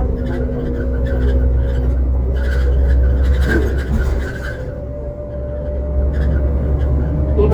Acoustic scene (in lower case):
bus